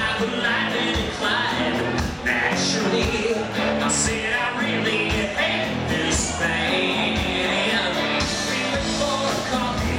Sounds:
Acoustic guitar, Musical instrument, Plucked string instrument, Strum, Music, Guitar

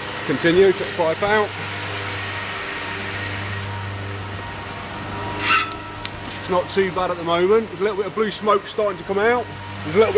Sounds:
Speech, Car, Vehicle

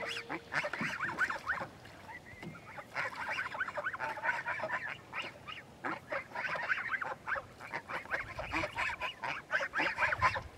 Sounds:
Goose, Fowl

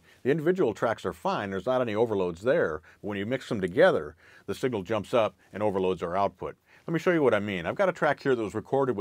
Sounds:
Speech

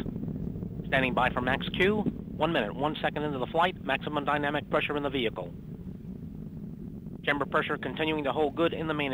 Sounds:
Speech

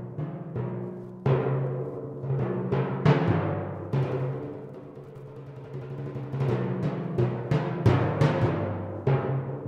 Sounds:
Music, Timpani

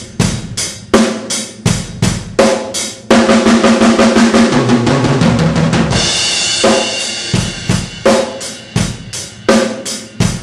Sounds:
Music

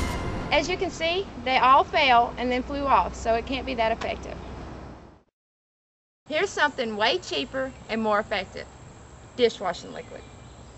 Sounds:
Speech, Music

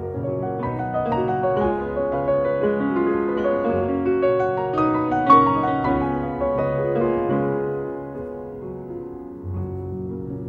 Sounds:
Piano, Music

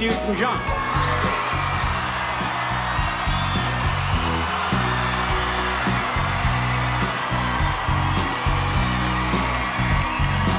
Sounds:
Music, Speech

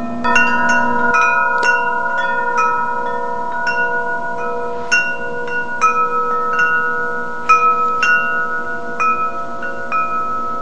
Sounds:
Wind chime, Chime

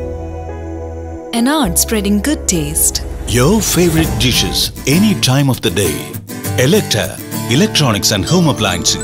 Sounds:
Speech, Music

